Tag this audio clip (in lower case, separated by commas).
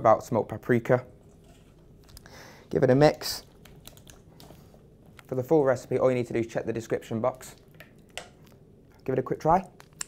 inside a small room, speech